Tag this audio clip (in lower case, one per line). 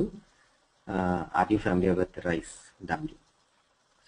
speech